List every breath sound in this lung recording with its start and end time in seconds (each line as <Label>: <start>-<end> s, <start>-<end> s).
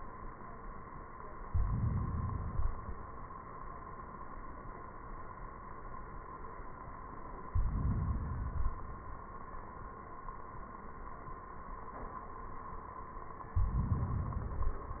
Inhalation: 1.50-2.58 s, 7.50-8.45 s, 13.56-14.54 s
Exhalation: 2.59-3.40 s, 8.46-9.29 s